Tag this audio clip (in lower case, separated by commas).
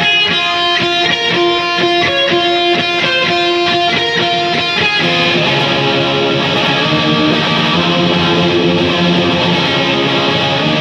musical instrument, plucked string instrument, strum, music, playing electric guitar, guitar, electric guitar